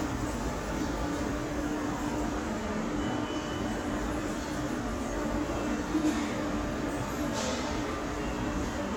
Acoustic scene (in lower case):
subway station